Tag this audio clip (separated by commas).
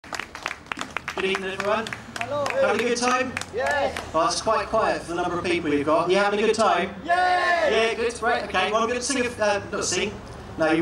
playing saxophone